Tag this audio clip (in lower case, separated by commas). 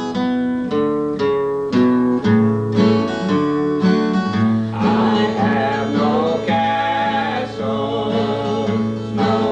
music, bluegrass